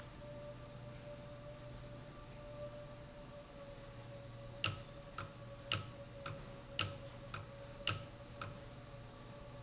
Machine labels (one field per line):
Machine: valve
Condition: abnormal